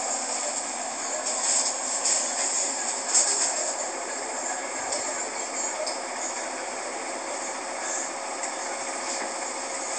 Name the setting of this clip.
bus